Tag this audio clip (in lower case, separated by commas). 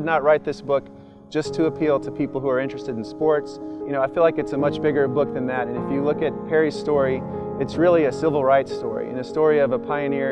speech, music